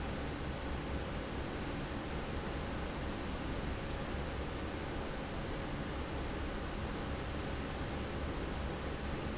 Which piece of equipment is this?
fan